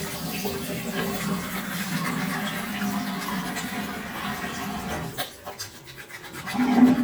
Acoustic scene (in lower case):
restroom